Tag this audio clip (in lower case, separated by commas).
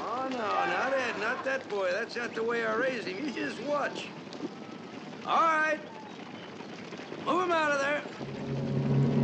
music, speech